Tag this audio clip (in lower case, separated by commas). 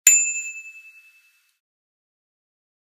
vehicle, bicycle bell, alarm, bell, bicycle